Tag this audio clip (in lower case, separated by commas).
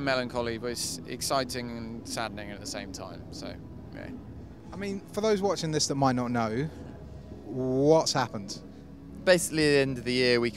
speech